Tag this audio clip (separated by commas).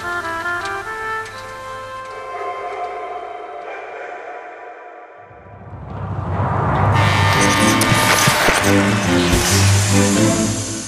Music